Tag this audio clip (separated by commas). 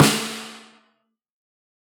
Percussion, Music, Musical instrument, Drum, Snare drum